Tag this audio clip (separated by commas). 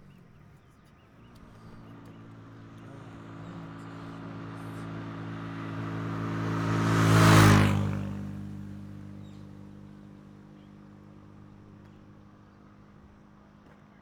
Motorcycle, Motor vehicle (road), Vehicle